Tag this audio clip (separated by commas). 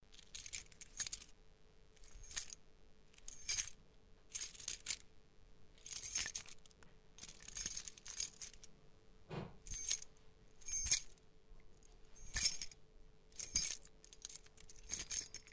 Keys jangling, Domestic sounds